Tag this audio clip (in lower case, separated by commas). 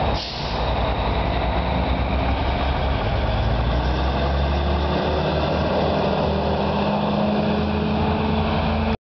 engine, truck, revving, vehicle, fire engine, medium engine (mid frequency)